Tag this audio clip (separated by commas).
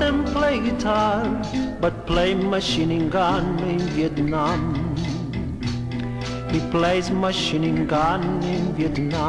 Music